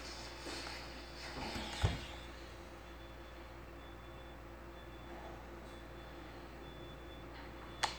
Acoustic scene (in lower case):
elevator